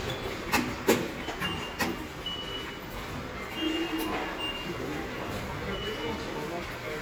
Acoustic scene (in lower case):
subway station